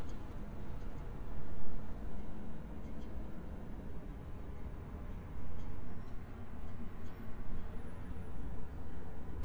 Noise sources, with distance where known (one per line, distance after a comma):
background noise